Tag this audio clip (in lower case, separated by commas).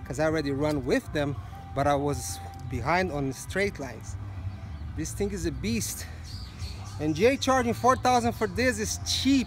speech